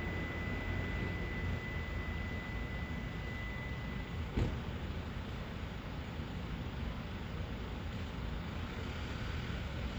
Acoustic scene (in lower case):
street